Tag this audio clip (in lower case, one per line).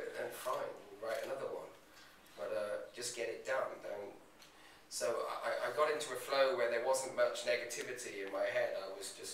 speech